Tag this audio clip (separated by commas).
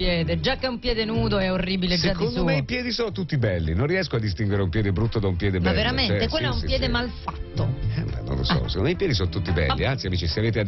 Music, Speech